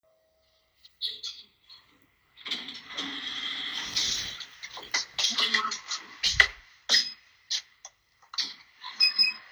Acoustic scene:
elevator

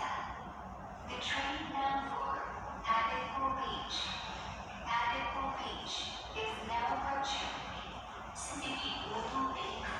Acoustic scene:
subway station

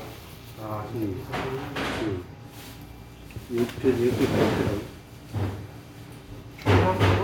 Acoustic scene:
restaurant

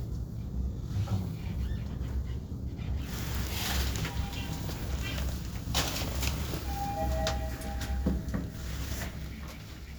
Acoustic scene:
elevator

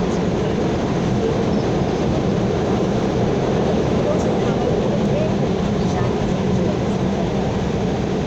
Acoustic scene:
subway train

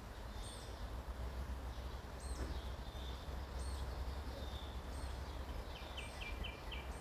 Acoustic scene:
park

